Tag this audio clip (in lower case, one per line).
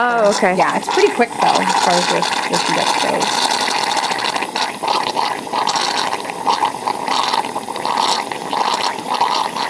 speech
inside a small room